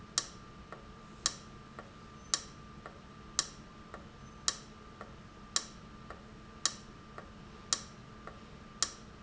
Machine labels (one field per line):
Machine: valve